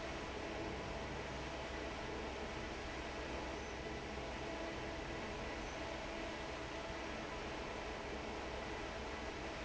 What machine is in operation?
fan